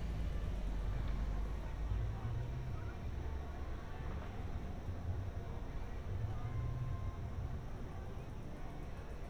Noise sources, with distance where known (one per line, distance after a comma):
medium-sounding engine
music from an unclear source, far
person or small group talking